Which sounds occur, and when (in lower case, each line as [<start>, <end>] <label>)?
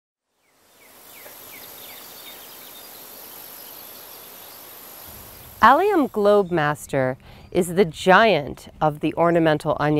[0.16, 9.95] mechanisms
[0.33, 9.95] bird song
[1.21, 1.30] tick
[5.60, 7.15] female speech
[7.17, 7.46] breathing
[7.50, 9.95] female speech